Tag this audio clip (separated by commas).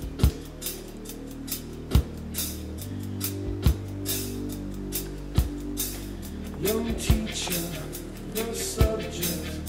Music